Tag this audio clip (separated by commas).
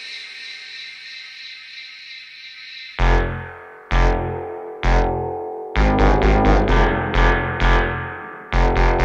Music